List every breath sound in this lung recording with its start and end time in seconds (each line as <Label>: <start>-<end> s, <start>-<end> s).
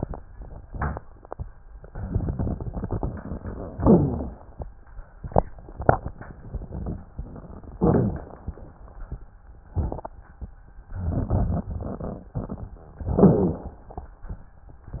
Inhalation: 0.35-1.71 s, 3.84-5.16 s, 7.72-9.65 s, 12.96-14.56 s
Exhalation: 1.72-3.77 s, 5.16-7.71 s, 9.70-10.89 s
Wheeze: 3.79-4.35 s
Crackles: 0.35-1.71 s, 1.73-3.77 s, 5.16-7.71 s, 7.72-9.65 s, 9.70-10.87 s, 10.88-12.93 s, 12.96-14.56 s